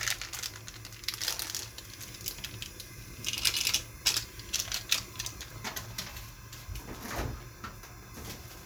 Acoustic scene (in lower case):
kitchen